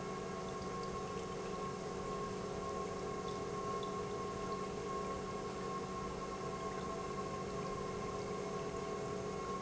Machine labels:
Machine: pump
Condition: normal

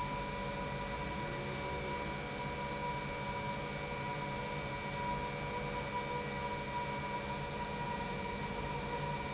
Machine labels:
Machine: pump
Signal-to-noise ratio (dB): -6 dB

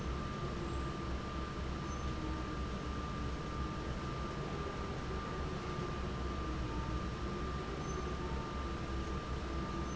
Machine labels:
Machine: fan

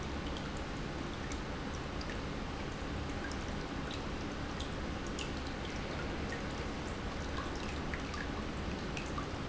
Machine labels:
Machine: pump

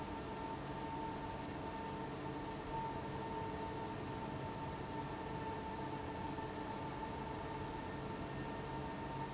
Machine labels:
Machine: fan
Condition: abnormal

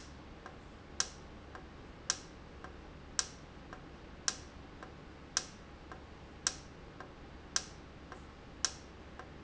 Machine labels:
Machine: valve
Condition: normal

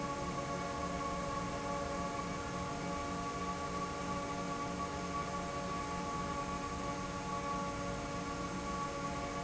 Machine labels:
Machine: fan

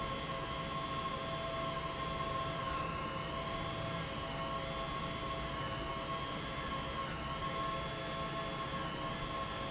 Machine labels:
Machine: pump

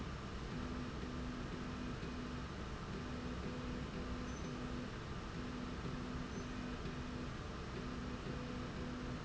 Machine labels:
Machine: slide rail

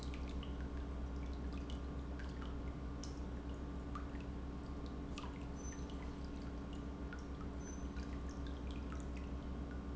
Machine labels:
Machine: pump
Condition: normal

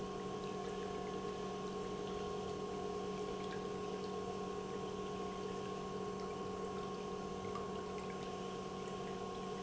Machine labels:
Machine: pump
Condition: normal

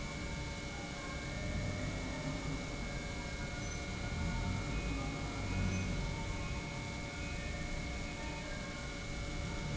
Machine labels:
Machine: pump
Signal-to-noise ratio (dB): -6 dB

